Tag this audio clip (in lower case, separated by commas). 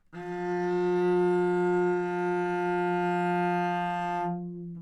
musical instrument, bowed string instrument, music